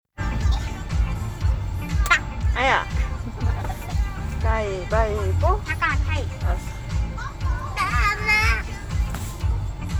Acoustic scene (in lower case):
car